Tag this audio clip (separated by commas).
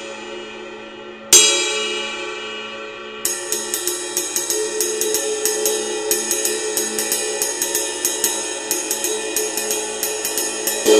Music